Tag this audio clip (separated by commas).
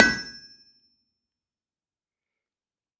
Tools